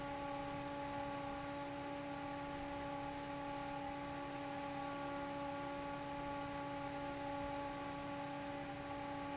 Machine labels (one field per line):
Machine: fan